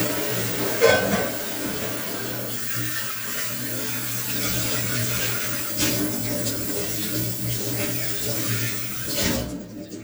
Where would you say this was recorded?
in a kitchen